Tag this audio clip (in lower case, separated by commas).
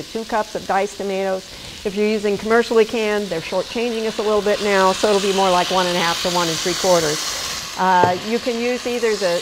inside a small room, speech